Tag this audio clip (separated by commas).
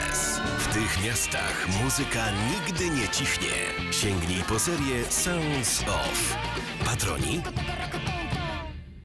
Speech, Music